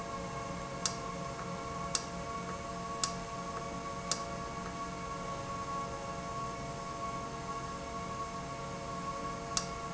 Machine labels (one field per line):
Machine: valve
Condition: normal